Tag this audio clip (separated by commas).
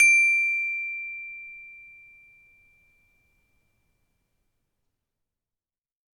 Musical instrument, Music, xylophone, Percussion, Mallet percussion